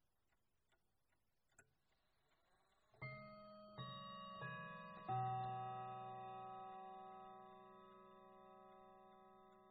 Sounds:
clock, mechanisms

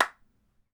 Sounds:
clapping, hands

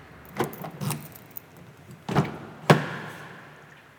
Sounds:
home sounds, vehicle, motor vehicle (road), door, car

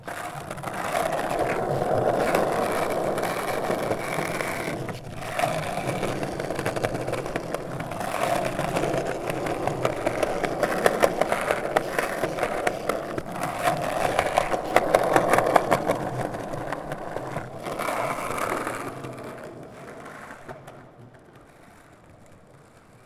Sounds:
vehicle, skateboard

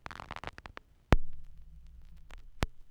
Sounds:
crackle

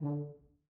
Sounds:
musical instrument, brass instrument, music

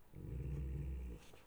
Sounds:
domestic animals, growling, animal, dog

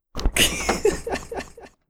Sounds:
laughter, human voice

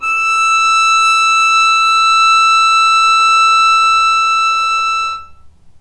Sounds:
music, bowed string instrument, musical instrument

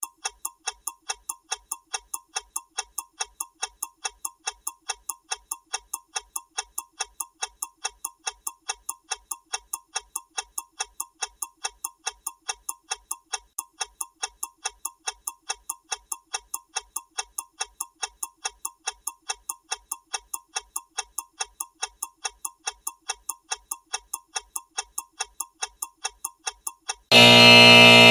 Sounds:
clock, mechanisms, alarm

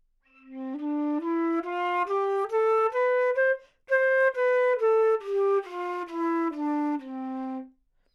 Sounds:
musical instrument, woodwind instrument, music

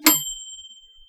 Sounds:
bell, microwave oven, domestic sounds

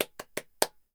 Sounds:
clapping, hands

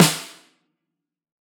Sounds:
snare drum, music, percussion, drum, musical instrument

